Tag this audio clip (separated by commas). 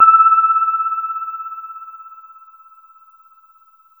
Musical instrument, Piano, Keyboard (musical), Music